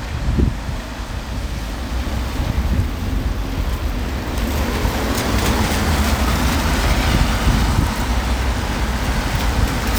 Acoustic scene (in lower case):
street